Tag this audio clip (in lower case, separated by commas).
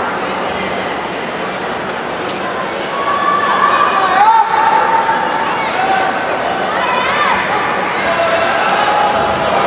speech